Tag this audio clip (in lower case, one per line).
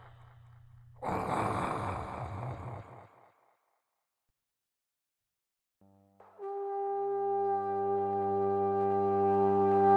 theme music
music
trombone